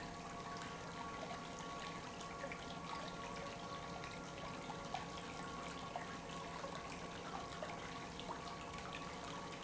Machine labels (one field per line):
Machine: pump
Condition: normal